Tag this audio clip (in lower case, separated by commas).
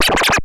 musical instrument, scratching (performance technique), music